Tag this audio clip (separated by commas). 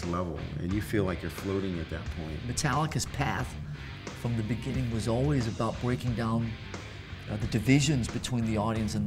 Rock and roll, Speech, Music